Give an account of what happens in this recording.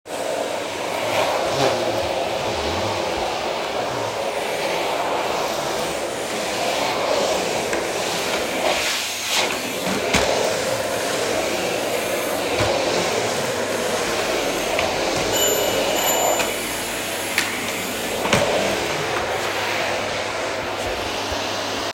I used my vacuum cleaner in the living room. After some time the bell rings. I ignore it and keep cleaning